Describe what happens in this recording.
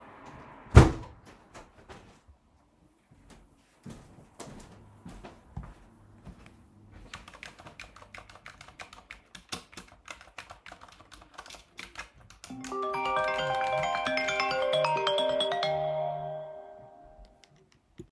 I closed the window, walked to the table, and started typing. While I was doing that, phone started ringing.